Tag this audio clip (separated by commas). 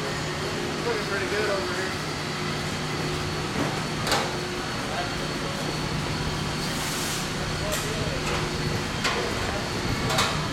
Speech